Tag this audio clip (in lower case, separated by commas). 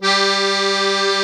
accordion, music, musical instrument